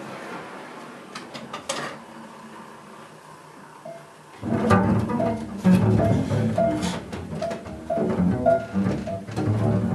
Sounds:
music, musical instrument, drum

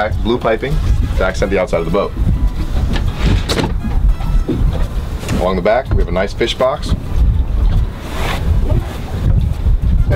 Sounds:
vehicle, boat, speech, music

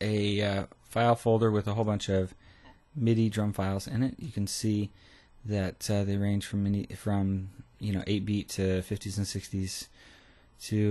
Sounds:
speech

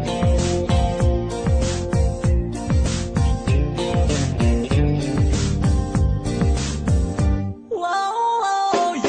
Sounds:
rhythm and blues, pop music, music

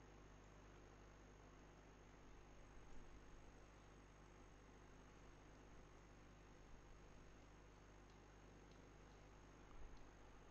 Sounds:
silence

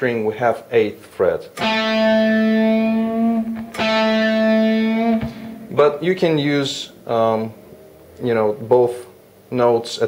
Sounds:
music, speech, plucked string instrument, guitar, musical instrument, electric guitar

